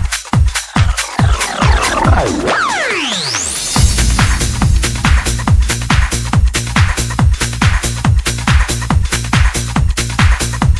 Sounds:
trance music
techno

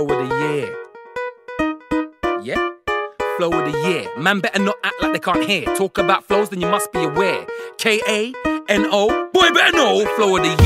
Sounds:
music

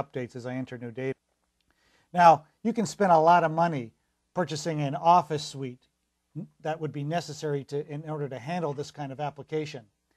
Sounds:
speech

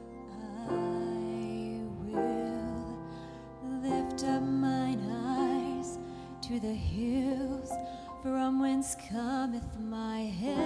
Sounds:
music
female singing

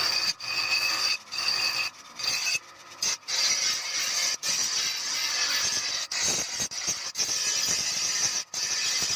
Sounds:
sharpen knife

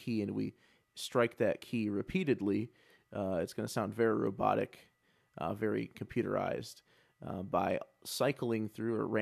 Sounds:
speech
speech synthesizer

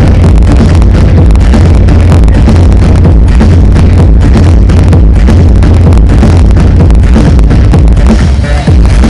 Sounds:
disco
music

